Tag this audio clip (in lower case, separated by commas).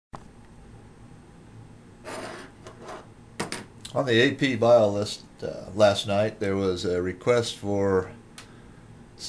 speech